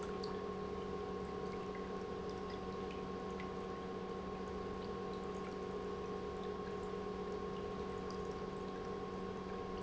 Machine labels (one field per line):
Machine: pump